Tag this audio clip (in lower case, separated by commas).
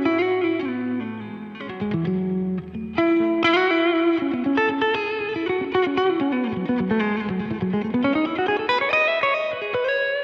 music